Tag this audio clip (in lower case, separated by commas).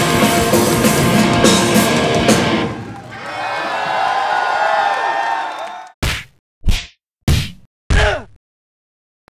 music